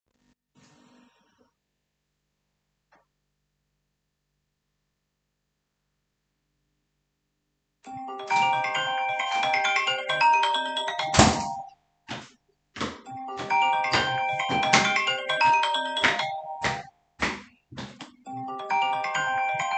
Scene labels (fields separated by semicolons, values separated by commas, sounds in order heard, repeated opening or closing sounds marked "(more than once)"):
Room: living room, bedroom; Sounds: phone ringing, door, footsteps